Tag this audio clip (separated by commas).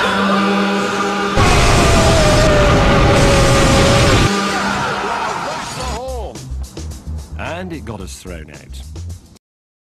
Music, Speech